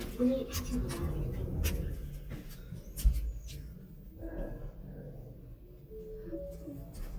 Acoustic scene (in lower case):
elevator